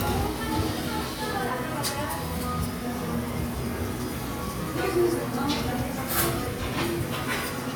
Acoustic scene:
restaurant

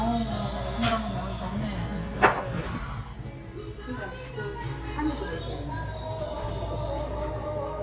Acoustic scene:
restaurant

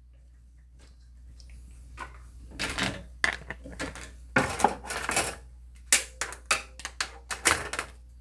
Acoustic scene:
kitchen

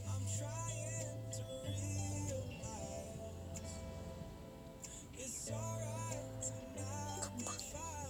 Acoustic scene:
car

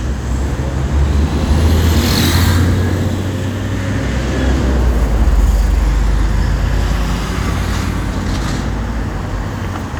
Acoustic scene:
street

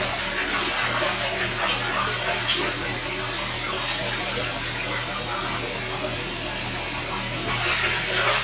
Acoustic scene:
restroom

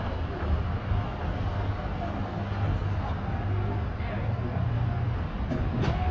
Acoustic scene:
residential area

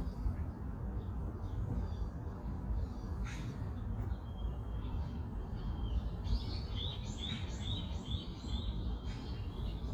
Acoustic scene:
park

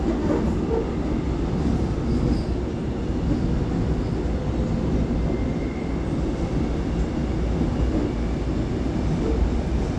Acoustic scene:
subway train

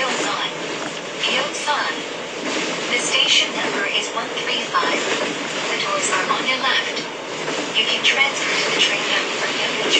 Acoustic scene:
subway train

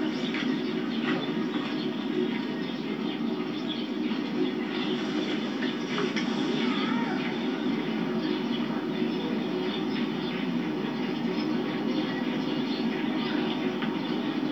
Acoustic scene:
park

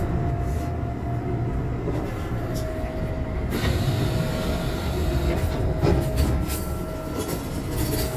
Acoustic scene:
subway train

